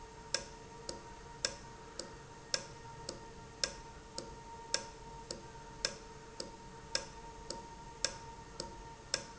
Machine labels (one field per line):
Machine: valve